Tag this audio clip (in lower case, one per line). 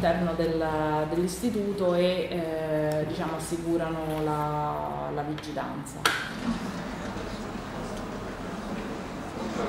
speech